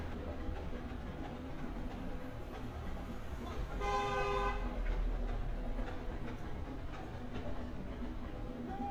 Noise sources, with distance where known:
car horn, near

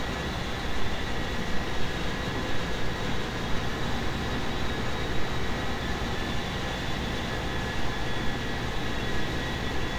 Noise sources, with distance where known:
engine of unclear size
small or medium rotating saw

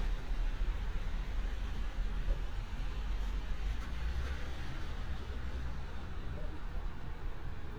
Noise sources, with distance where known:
medium-sounding engine

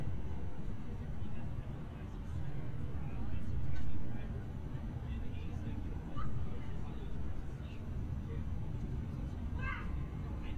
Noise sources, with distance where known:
person or small group talking, far

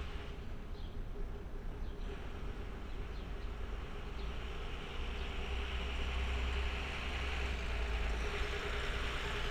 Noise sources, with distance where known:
large-sounding engine

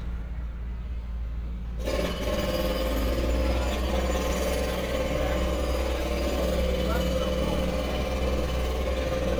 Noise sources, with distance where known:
jackhammer, near

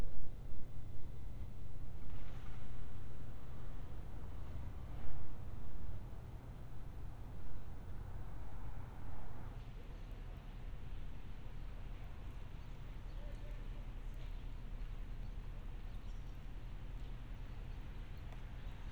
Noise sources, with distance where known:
background noise

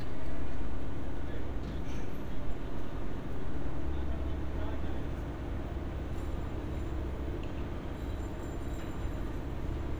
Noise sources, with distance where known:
person or small group talking

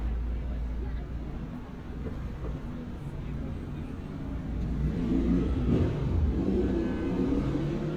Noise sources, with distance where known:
medium-sounding engine, far
person or small group talking

